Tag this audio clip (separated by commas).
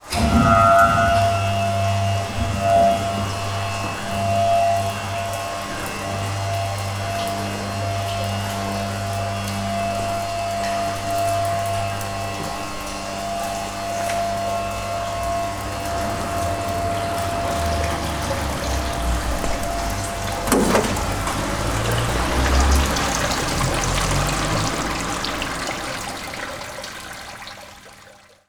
Water, Rain